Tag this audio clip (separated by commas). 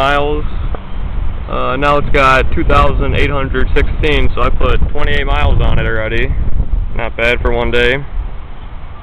Speech